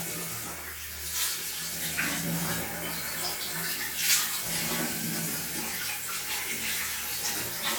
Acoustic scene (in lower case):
restroom